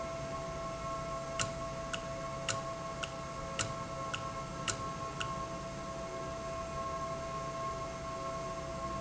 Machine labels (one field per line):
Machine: valve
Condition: normal